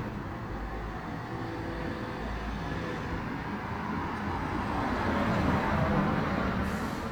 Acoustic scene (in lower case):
residential area